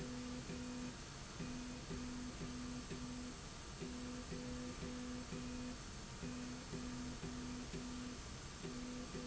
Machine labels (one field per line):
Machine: slide rail